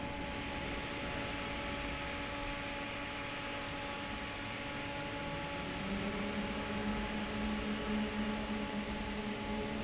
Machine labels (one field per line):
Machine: fan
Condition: normal